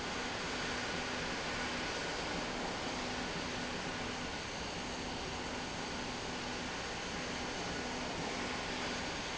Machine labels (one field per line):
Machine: slide rail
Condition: normal